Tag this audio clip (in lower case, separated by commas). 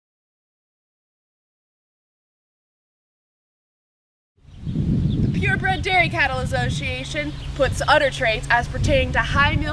speech